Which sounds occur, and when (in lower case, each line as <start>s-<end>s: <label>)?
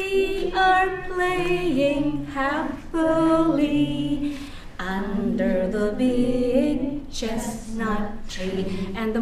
0.0s-8.9s: female singing